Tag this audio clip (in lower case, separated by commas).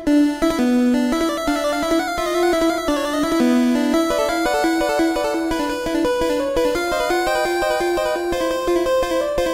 soundtrack music, music, video game music